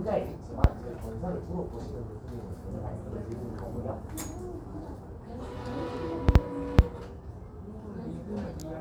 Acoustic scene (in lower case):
crowded indoor space